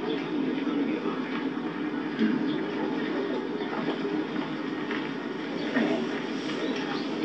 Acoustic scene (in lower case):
park